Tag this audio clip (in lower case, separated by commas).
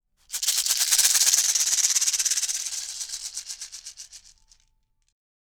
music, musical instrument, rattle (instrument), percussion